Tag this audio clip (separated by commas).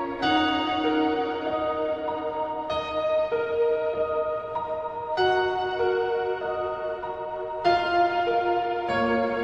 New-age music, Music